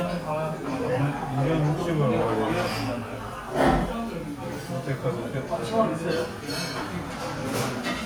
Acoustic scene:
restaurant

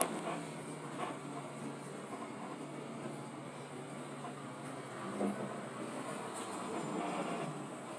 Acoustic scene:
bus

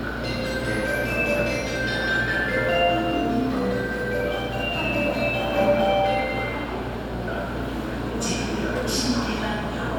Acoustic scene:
subway station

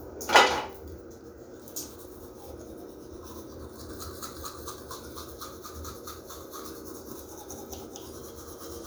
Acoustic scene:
restroom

